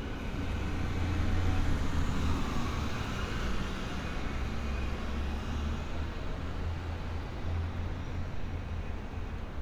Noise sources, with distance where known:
large-sounding engine, near

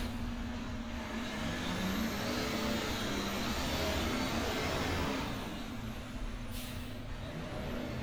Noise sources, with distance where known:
large-sounding engine, near

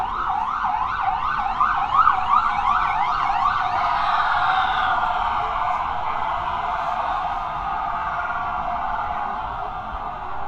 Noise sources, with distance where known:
siren, near

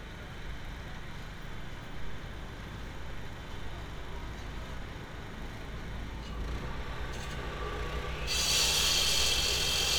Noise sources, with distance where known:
unidentified impact machinery
small or medium rotating saw, near

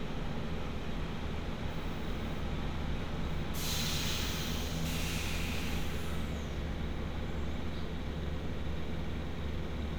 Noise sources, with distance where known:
large-sounding engine, near

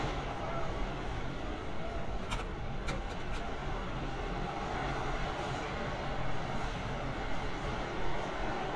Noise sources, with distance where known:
small-sounding engine, far
unidentified human voice, far

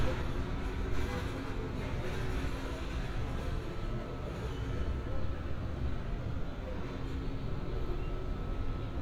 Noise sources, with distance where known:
car horn
person or small group talking

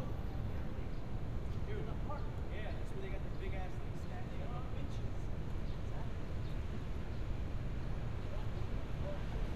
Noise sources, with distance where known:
person or small group talking

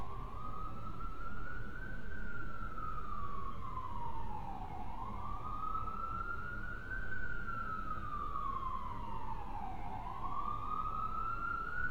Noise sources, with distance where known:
siren, far

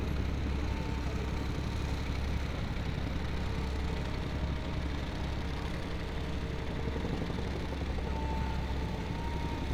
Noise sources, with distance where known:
medium-sounding engine, near

